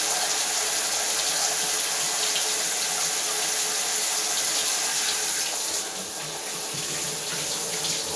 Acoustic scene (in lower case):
restroom